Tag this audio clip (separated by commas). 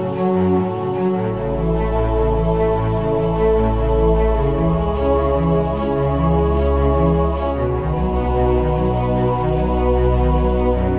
Music